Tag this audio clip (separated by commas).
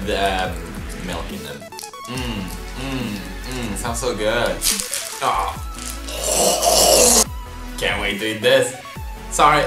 Speech, Music, inside a small room